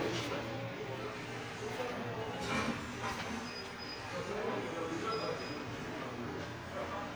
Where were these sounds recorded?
in an elevator